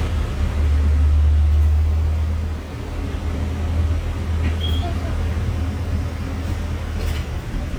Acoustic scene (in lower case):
bus